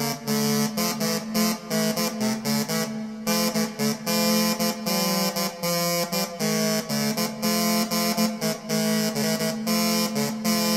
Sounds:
music
exciting music

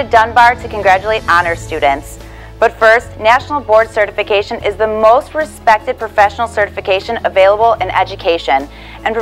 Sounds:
music
speech

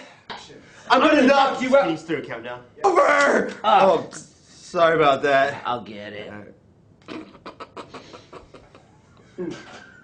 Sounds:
speech

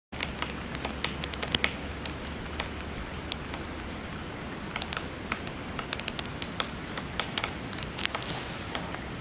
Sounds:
woodpecker pecking tree

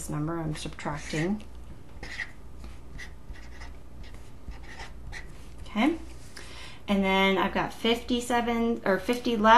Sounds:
inside a small room
speech
writing

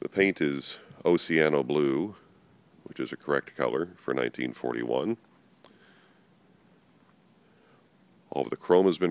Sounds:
speech

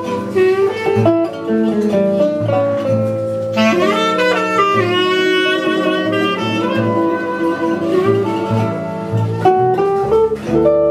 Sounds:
bowed string instrument
flamenco
music
guitar
musical instrument
pizzicato
clarinet
playing clarinet

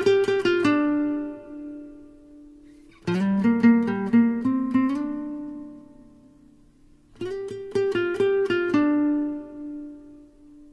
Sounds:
music

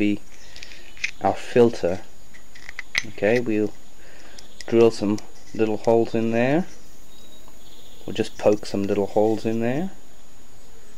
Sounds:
speech

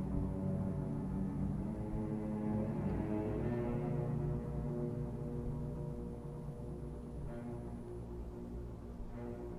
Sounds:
scary music
violin
music

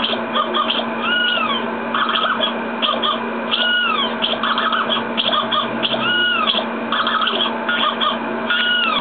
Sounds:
music

